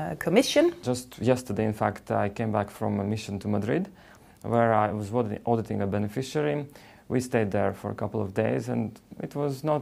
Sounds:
Speech

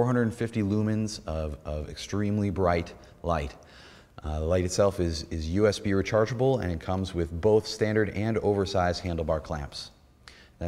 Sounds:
Speech

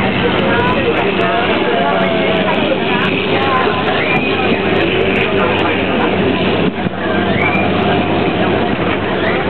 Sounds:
Vehicle, speedboat

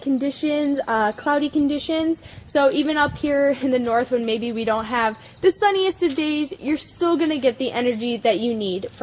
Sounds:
Speech

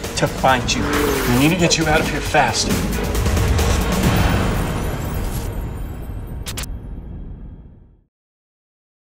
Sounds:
Speech, Music

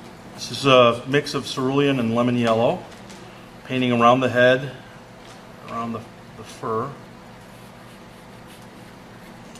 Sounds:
Speech

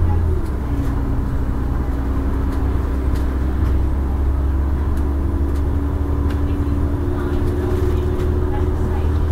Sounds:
Bus, Vehicle, driving buses, Speech

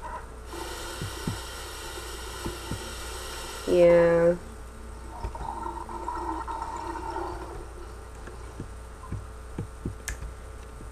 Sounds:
Speech

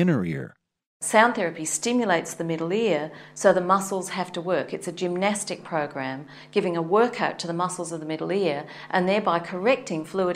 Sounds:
Speech

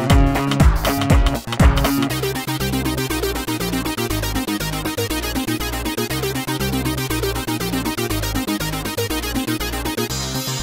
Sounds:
Music, Electronic music, Techno, Exciting music

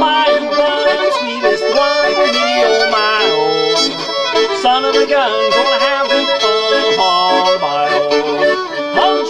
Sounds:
fiddle, Musical instrument, Music

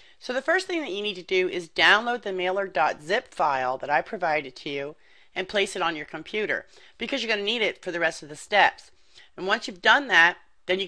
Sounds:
Speech

